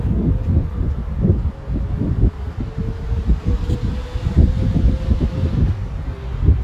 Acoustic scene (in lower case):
residential area